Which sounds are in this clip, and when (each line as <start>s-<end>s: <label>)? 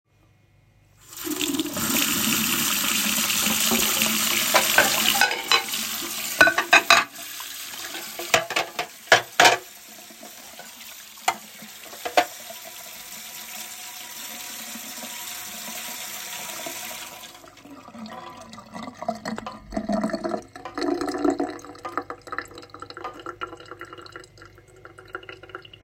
1.0s-25.8s: running water
4.5s-7.1s: cutlery and dishes
8.2s-9.7s: cutlery and dishes
11.1s-12.4s: cutlery and dishes